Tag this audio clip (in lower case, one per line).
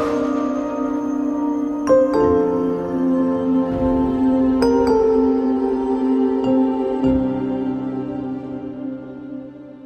music
new-age music